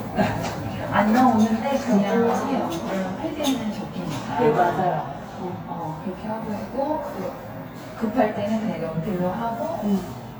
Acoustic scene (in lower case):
elevator